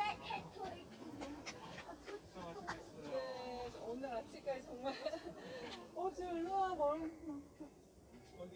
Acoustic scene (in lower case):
park